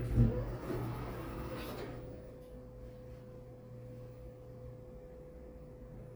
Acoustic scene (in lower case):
elevator